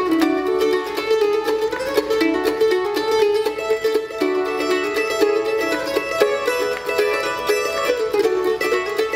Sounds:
Music, Musical instrument, Pizzicato, Bluegrass, Mandolin, Plucked string instrument

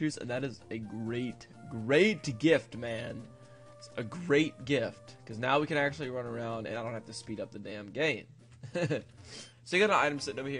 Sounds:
Speech

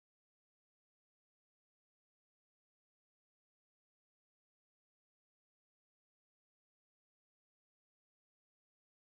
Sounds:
Music, Silence

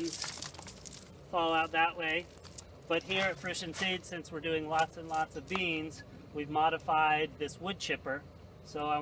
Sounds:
Speech

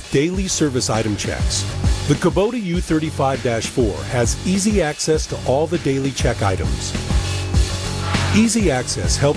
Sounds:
Music, Speech

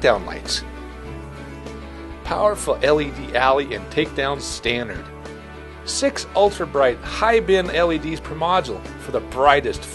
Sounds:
Music, Speech

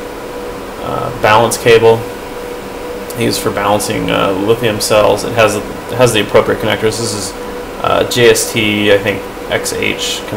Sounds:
Speech

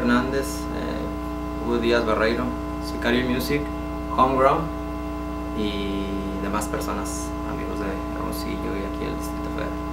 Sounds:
Speech

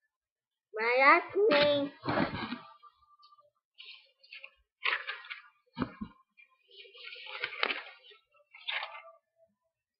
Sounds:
Child speech, Speech

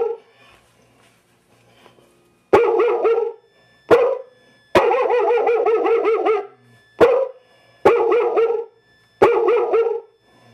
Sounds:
inside a small room, Bark, Dog, Bow-wow

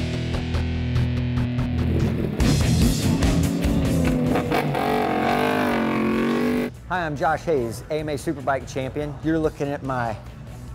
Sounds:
Motor vehicle (road), Vehicle, Speech, Music

